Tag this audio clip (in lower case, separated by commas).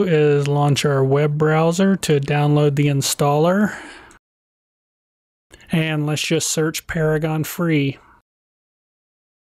speech